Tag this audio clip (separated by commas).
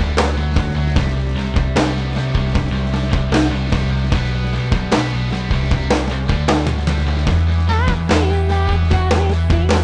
Music